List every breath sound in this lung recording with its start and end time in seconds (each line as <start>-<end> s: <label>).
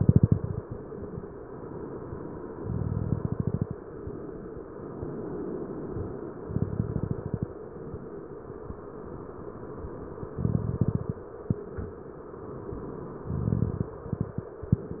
0.00-0.74 s: exhalation
0.00-0.74 s: crackles
2.57-3.74 s: exhalation
2.57-3.74 s: crackles
6.35-7.52 s: exhalation
6.35-7.52 s: crackles
10.28-11.26 s: exhalation
10.28-11.26 s: crackles
13.21-14.49 s: exhalation
13.21-14.49 s: crackles